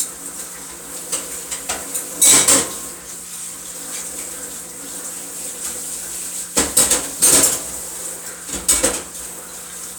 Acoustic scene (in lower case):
kitchen